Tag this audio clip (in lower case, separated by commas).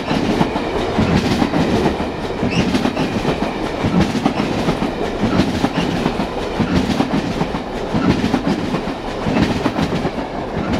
vehicle